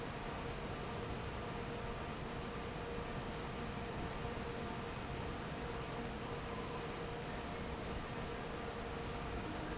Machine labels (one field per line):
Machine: fan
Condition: normal